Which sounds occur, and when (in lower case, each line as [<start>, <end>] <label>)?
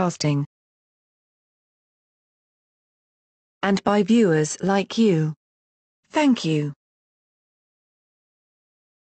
[0.00, 0.42] female speech
[3.60, 5.34] female speech
[6.00, 6.73] female speech